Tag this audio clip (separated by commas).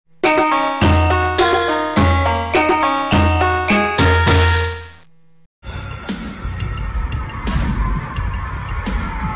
Music